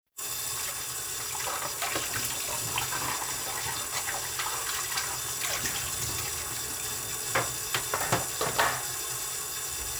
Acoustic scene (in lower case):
kitchen